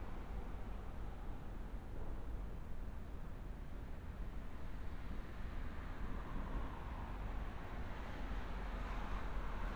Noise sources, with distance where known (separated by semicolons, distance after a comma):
medium-sounding engine